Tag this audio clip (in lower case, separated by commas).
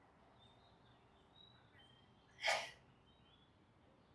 sneeze, respiratory sounds